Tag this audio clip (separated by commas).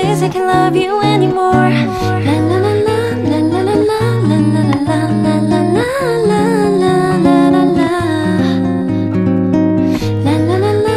people humming